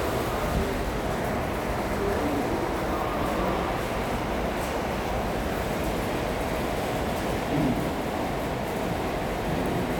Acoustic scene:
subway station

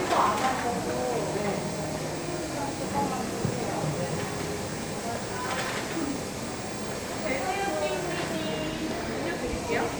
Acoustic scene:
cafe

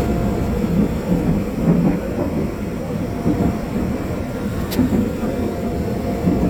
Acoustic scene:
subway train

